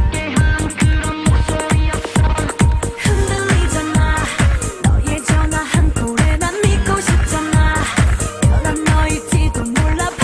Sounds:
Music

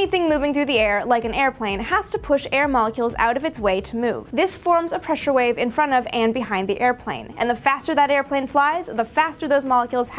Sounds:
Speech

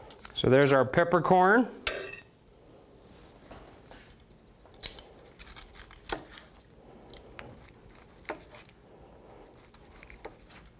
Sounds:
Speech, inside a small room

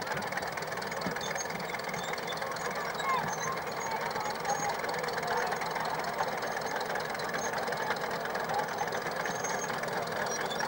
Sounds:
Speech

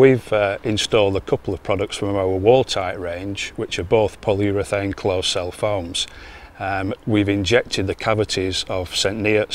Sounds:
Speech

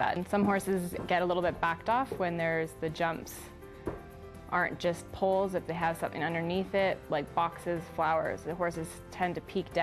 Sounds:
Speech, Clip-clop

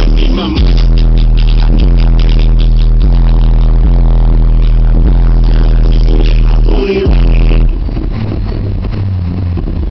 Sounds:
Vehicle, Music, Car

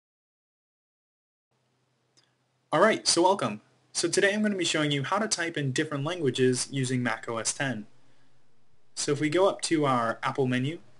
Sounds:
Speech

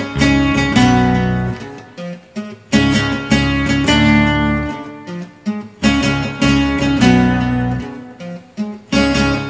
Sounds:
Musical instrument, Music, Guitar

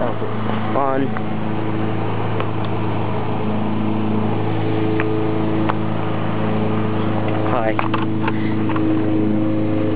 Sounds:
Mechanical fan, Speech

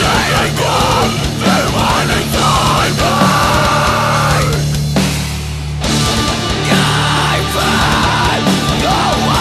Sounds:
Music

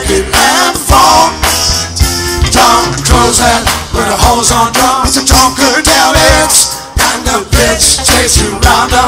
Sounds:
Music

